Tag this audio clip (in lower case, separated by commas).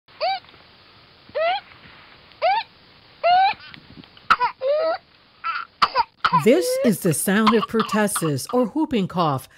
speech